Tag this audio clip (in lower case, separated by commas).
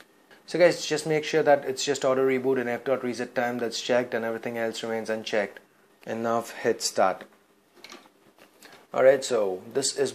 inside a small room, speech